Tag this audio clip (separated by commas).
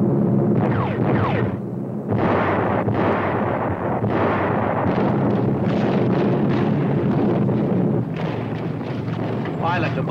Speech